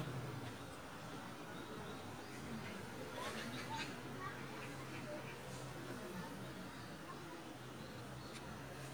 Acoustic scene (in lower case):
park